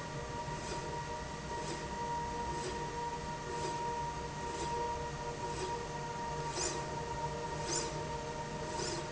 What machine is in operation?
slide rail